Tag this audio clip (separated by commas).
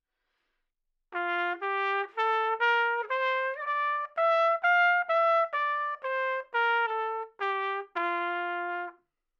Musical instrument, Trumpet, Music, Brass instrument